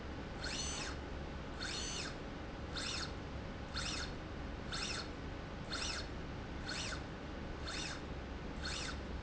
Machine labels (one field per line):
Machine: slide rail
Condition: normal